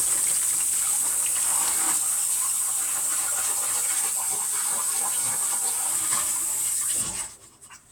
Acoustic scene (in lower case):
kitchen